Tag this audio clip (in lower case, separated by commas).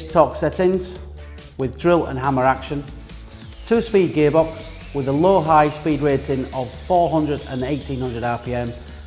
speech, music